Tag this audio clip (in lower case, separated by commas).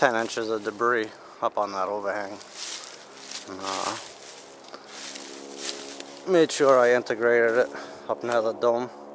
music, speech, outside, rural or natural